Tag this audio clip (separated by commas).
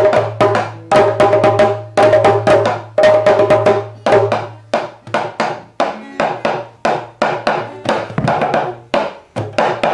Music, Percussion, Wood block